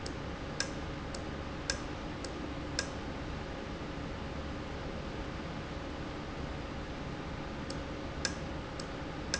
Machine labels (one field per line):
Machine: valve